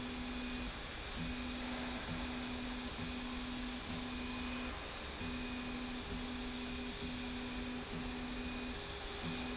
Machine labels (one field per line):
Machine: slide rail